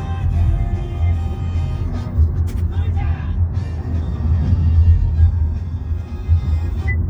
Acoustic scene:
car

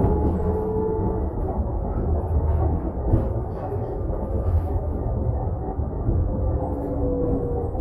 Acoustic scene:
bus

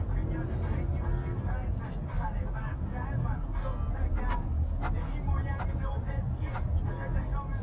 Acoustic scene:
car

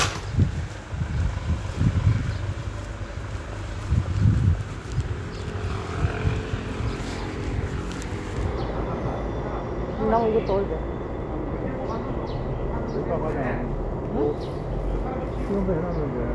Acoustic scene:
residential area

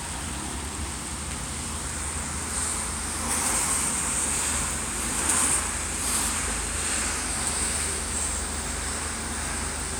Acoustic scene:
street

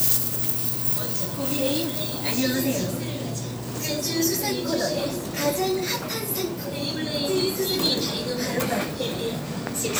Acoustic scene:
crowded indoor space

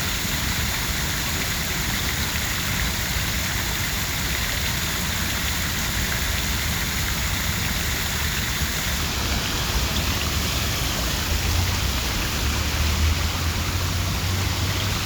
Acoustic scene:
park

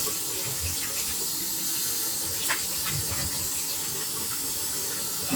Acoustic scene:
restroom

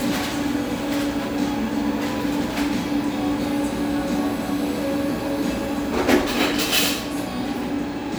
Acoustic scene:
cafe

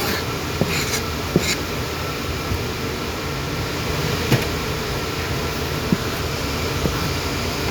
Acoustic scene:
kitchen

